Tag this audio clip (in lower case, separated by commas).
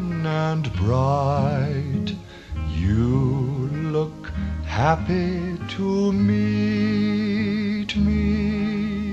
music, soundtrack music